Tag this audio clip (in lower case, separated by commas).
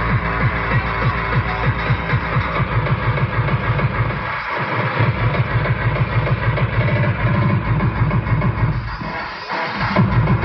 music